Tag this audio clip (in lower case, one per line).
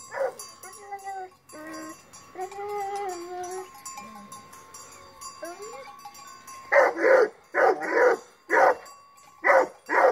bovinae cowbell